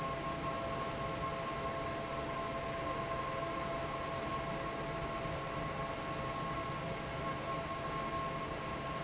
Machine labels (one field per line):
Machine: fan